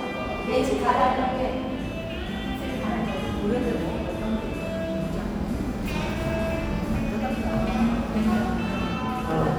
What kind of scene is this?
cafe